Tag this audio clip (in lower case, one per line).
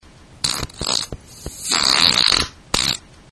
fart